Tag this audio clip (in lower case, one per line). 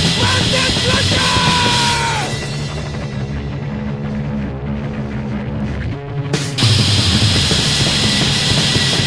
music